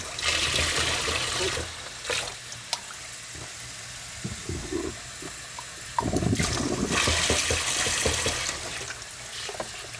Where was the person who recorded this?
in a kitchen